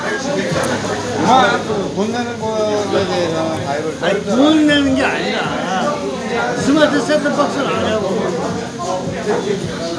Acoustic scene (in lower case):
crowded indoor space